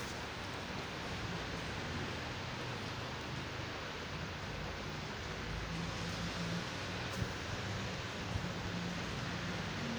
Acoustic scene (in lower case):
residential area